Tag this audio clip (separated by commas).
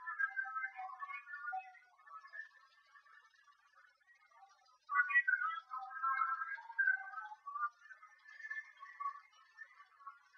Sound effect